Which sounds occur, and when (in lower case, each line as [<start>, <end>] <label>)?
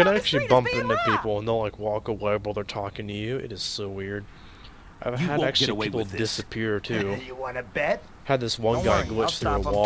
[0.00, 1.17] woman speaking
[0.00, 1.66] man speaking
[0.00, 9.85] video game sound
[0.00, 9.85] wind
[1.79, 4.28] man speaking
[4.29, 4.68] breathing
[4.97, 8.00] man speaking
[5.13, 9.74] conversation
[8.28, 9.85] man speaking
[8.62, 9.26] sound effect
[9.39, 9.85] music